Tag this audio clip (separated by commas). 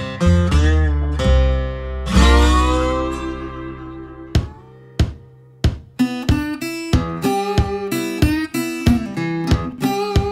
Music